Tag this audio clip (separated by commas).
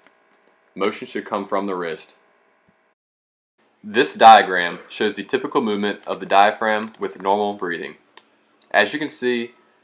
Speech